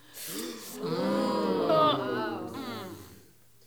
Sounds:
breathing, respiratory sounds, gasp

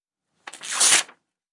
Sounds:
tearing

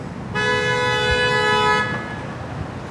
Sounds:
motor vehicle (road), vehicle

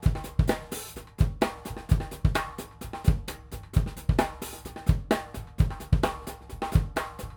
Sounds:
musical instrument, music, drum, percussion, drum kit

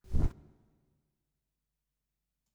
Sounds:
wild animals, animal, bird

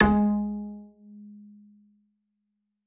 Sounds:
music, musical instrument, bowed string instrument

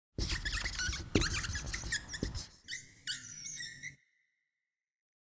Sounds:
writing, squeak, domestic sounds

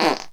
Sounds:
fart

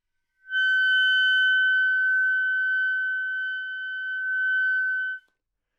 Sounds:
music, wind instrument, musical instrument

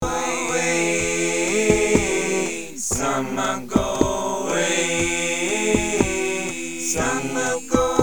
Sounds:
human voice

